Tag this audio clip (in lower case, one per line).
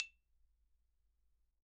mallet percussion
xylophone
percussion
musical instrument
music